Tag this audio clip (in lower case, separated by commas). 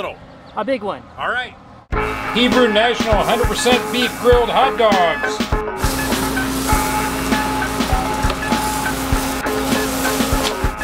speech, music